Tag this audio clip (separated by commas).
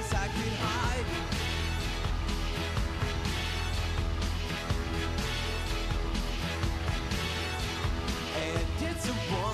Music